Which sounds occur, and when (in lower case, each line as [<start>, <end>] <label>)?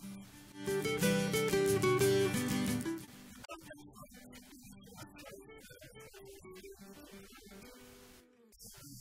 [0.00, 0.49] noise
[0.00, 9.00] music
[2.76, 9.00] noise